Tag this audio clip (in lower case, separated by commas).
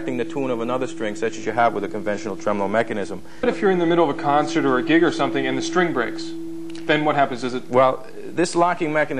speech